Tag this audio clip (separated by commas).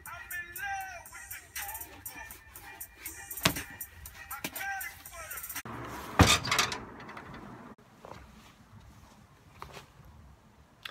Music, inside a small room